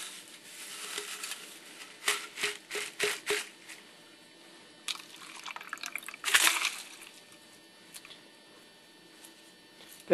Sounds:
Speech

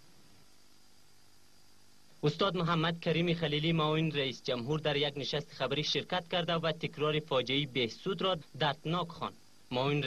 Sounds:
man speaking, Speech

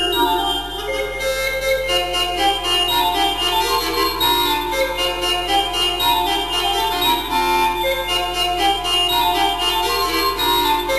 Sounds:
Music

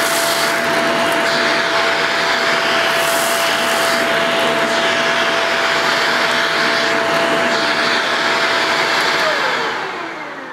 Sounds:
vacuum cleaner cleaning floors

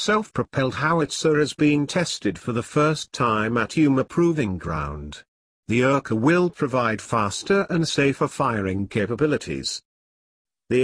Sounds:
firing cannon

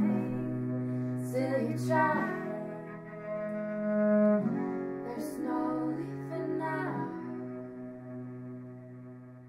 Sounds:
Musical instrument, Bowed string instrument, Guitar, Music, Double bass, Cello

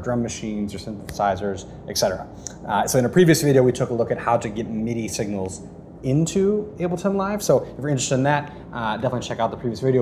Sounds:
Speech

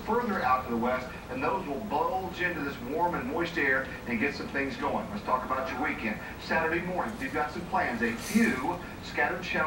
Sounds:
Bird, dove, Speech

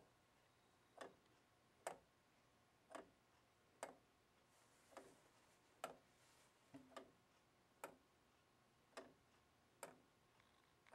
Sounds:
Tick-tock, Tick

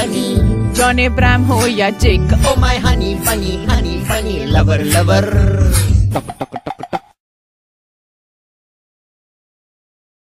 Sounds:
Music

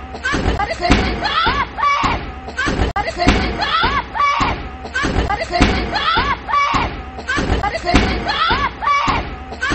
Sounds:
Speech

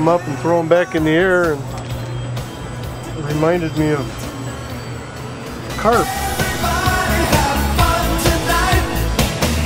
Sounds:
Music, Speech

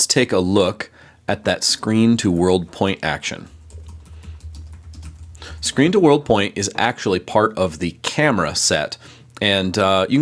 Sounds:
Typing, Speech

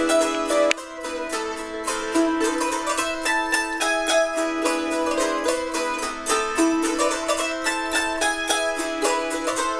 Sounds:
Music, Mandolin, Plucked string instrument, Musical instrument

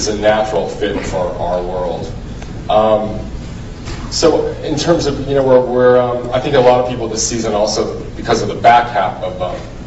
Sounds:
Speech

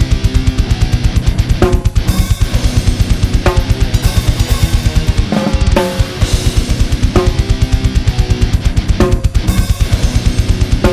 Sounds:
Music

